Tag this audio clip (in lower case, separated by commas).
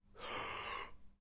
breathing, respiratory sounds